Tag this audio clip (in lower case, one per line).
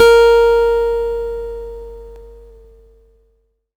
musical instrument
guitar
acoustic guitar
music
plucked string instrument